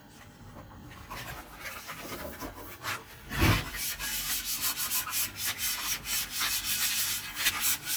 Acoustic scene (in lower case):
kitchen